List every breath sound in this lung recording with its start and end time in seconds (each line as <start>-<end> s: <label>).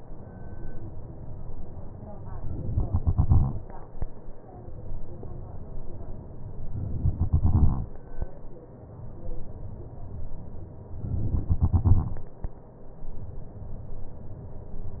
2.85-4.05 s: exhalation
6.94-8.13 s: exhalation
11.24-12.43 s: exhalation